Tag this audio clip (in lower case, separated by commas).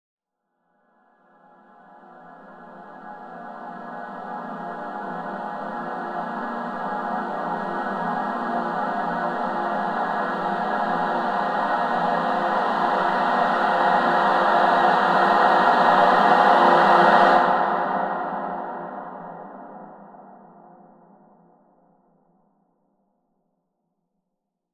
music, singing, human voice, musical instrument